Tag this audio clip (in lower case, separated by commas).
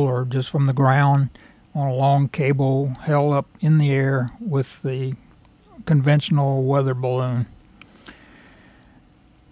speech